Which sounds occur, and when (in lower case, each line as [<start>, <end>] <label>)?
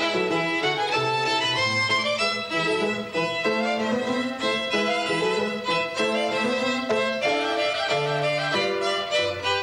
[0.00, 9.62] music